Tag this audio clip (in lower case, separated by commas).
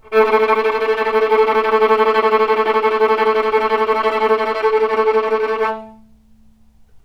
bowed string instrument, musical instrument, music